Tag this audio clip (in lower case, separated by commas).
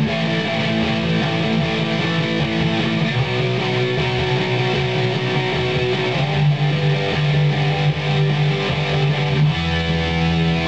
music, electric guitar, musical instrument, plucked string instrument, guitar